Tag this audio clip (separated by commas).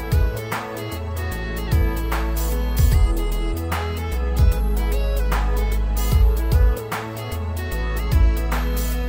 Music